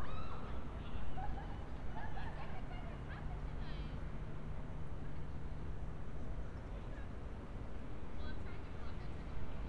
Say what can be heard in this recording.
person or small group talking